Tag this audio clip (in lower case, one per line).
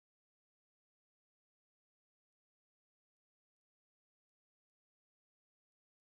animal
bird
wild animals
wind
seagull